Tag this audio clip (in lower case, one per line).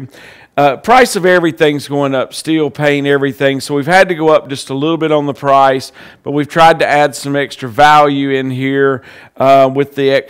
speech